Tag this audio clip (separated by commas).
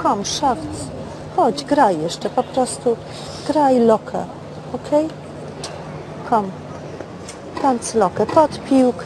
Speech